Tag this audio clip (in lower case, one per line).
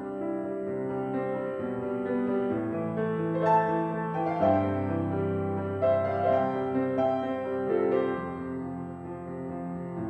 music